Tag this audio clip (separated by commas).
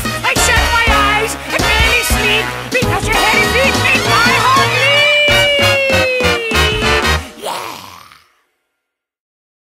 Music